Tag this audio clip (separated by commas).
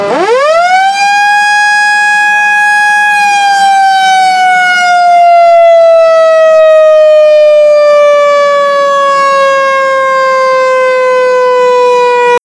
Siren, Alarm